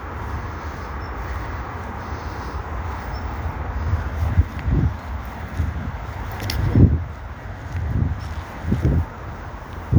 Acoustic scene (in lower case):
park